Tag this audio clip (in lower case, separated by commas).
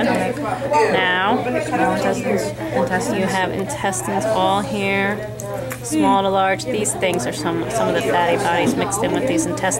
speech